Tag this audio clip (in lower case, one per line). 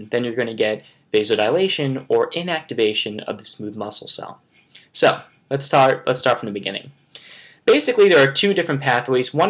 speech